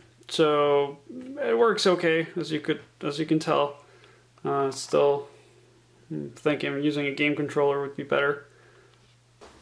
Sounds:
Speech

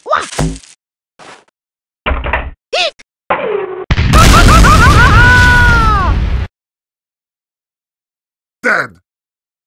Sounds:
Speech

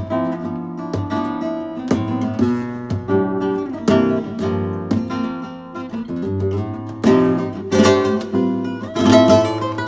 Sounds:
Guitar, Musical instrument, Music, Classical music, Mandolin, Plucked string instrument, Acoustic guitar

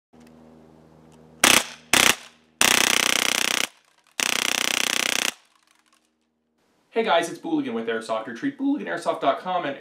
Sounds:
cap gun shooting, Cap gun

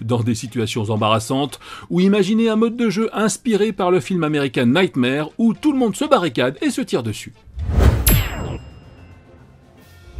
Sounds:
firing muskets

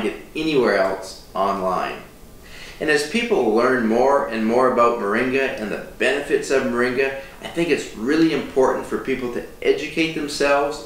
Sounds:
Speech

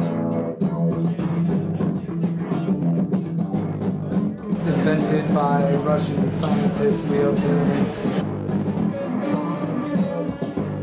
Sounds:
Music, Speech

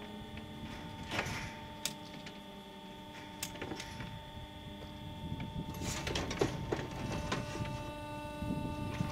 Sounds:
Sheep

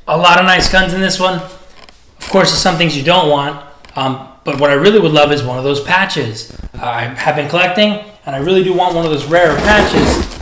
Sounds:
Speech

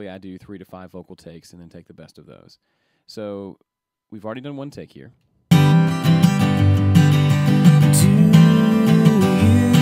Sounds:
Speech, Music

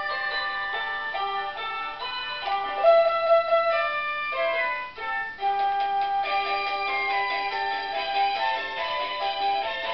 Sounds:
Christian music, Christmas music, Music

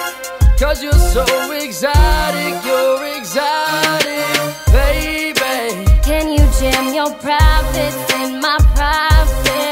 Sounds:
Music

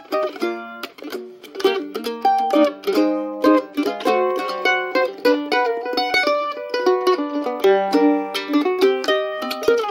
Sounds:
playing mandolin

